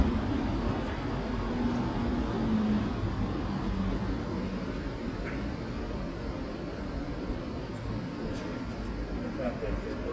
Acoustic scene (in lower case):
residential area